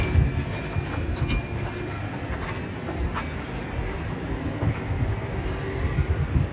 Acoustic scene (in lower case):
residential area